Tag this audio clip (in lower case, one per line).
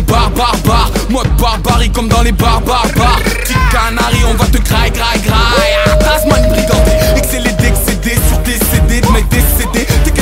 music